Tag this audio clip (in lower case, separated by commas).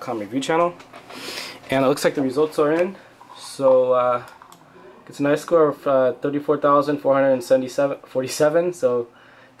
speech